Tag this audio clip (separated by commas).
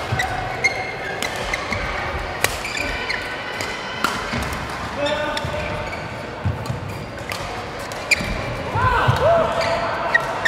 playing badminton